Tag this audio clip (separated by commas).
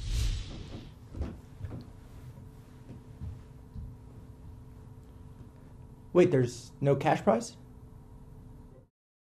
Speech, Male speech, monologue